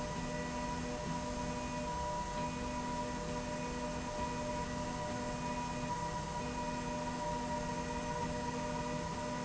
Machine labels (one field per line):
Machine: slide rail